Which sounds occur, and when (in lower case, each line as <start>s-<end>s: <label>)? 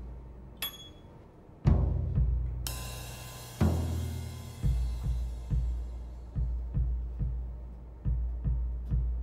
0.0s-9.2s: background noise
0.0s-9.2s: music
0.6s-1.1s: ding